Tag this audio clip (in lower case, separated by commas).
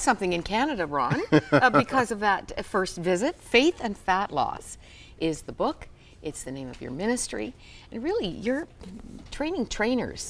inside a large room or hall, speech